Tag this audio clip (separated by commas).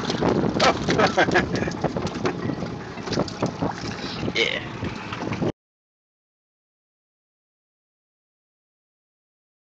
Speech